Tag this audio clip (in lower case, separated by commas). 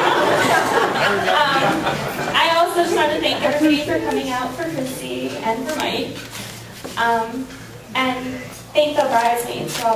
woman speaking, speech